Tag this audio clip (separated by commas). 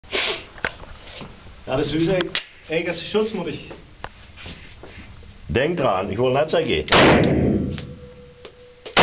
inside a large room or hall, Speech